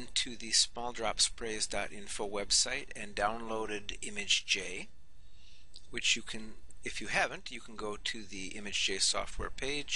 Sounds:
Speech

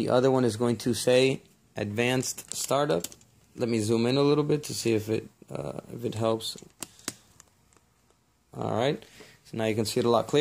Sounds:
Speech

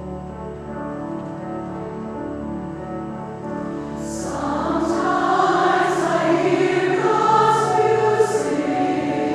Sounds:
Music

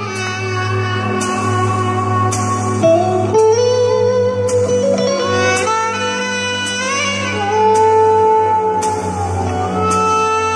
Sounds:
playing saxophone, Saxophone, Music

